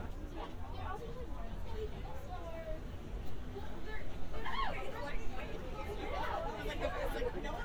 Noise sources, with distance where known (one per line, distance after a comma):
person or small group talking, near